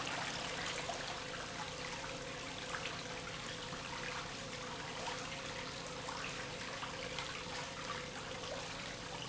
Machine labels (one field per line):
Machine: pump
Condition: abnormal